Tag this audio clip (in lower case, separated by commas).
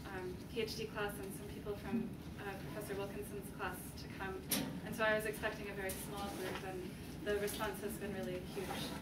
speech